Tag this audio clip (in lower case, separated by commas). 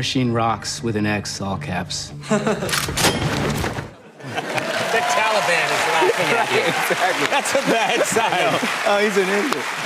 speech, music